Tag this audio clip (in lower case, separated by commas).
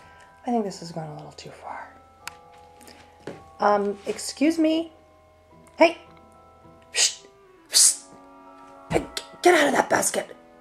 speech